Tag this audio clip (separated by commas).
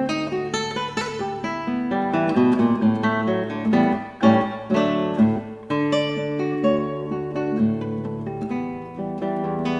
Music